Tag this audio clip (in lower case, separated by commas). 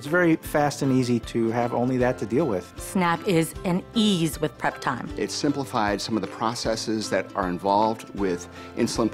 music, speech